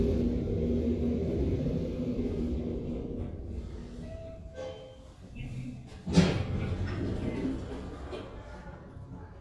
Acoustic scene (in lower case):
elevator